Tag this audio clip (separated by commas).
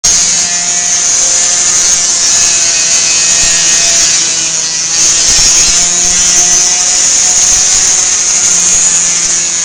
Power tool